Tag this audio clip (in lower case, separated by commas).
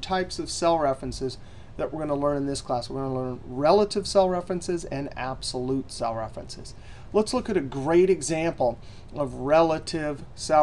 speech